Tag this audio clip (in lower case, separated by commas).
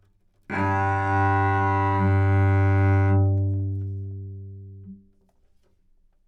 musical instrument, bowed string instrument, music